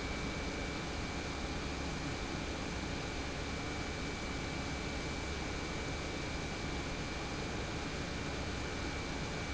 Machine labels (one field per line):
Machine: pump